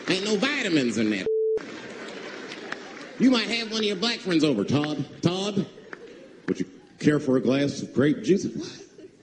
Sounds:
Speech

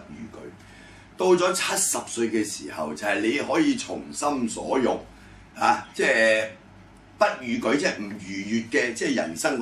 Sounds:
Speech

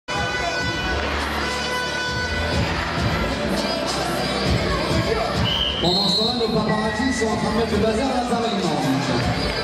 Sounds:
Wind instrument

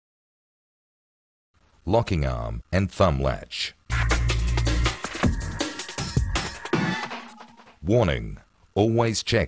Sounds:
Music, Speech

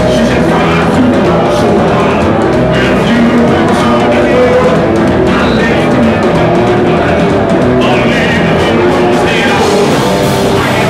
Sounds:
Music

